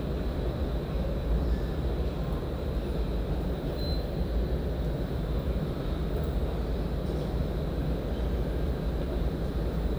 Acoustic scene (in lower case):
subway station